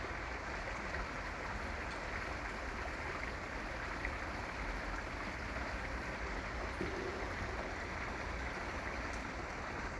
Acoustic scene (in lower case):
park